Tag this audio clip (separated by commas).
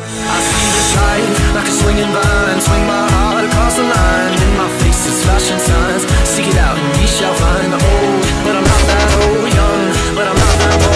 Music